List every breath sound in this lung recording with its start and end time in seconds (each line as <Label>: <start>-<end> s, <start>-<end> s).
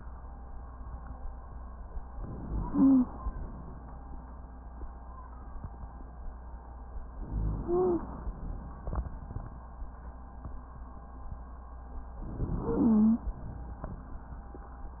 Inhalation: 2.15-3.31 s, 7.21-8.29 s, 12.23-13.31 s
Wheeze: 2.65-3.11 s, 7.63-8.09 s, 12.59-13.31 s